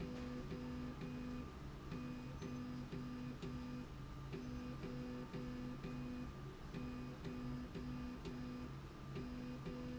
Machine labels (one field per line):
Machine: slide rail